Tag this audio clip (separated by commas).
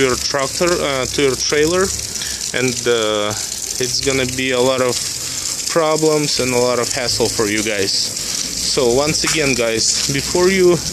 Speech